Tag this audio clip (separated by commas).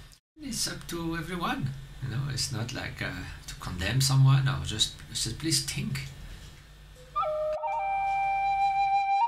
Speech, Flute, Music